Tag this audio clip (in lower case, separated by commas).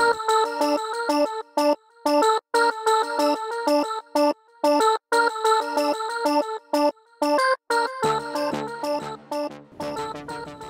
music